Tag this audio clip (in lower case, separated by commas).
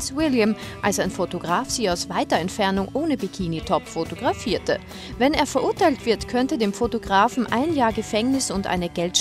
speech, music